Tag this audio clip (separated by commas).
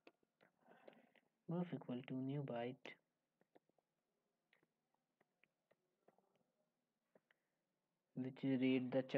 Speech, Silence